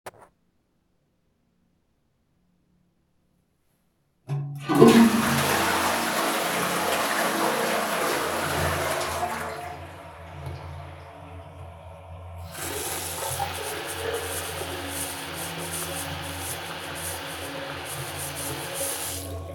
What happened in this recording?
I flushed the toilet and then I opened the faucet and let the water run for a few seconds.